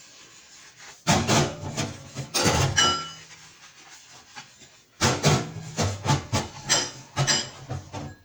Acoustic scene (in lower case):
kitchen